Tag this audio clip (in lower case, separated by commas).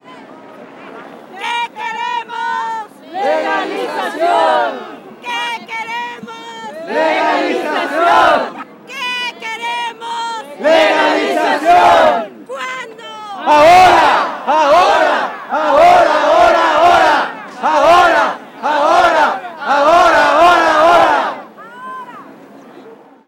human voice, singing